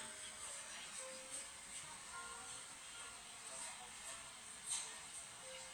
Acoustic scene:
cafe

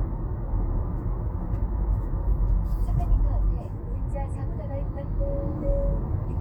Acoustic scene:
car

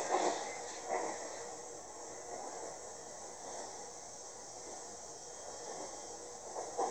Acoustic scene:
subway train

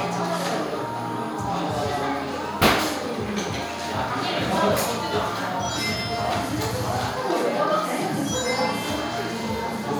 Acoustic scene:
cafe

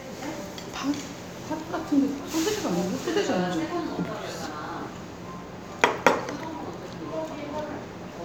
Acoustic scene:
restaurant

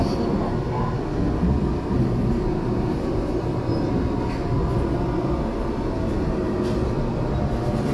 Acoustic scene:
subway train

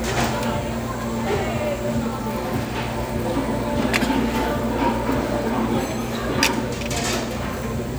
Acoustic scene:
restaurant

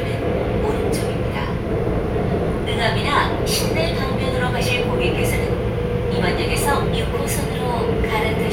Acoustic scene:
subway train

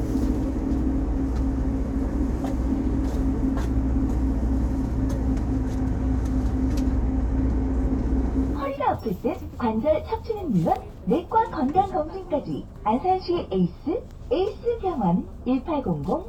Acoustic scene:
bus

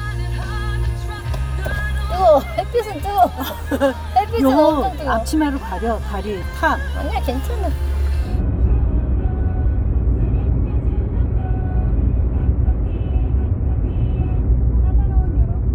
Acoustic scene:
car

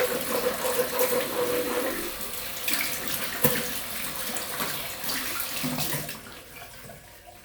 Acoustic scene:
restroom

